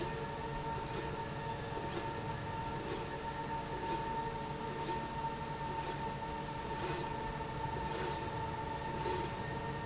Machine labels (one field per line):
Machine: slide rail